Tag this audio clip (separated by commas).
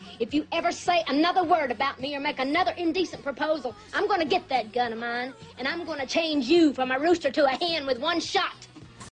Music, Speech